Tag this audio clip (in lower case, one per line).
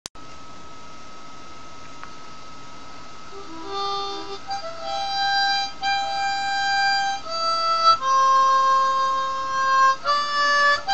playing harmonica